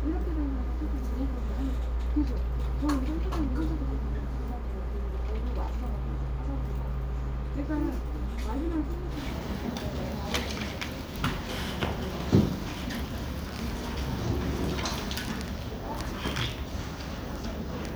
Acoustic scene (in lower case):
crowded indoor space